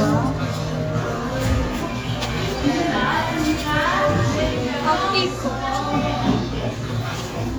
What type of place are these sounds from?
cafe